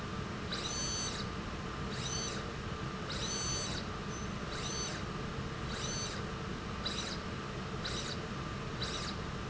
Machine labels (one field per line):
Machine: slide rail